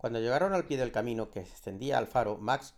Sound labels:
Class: speech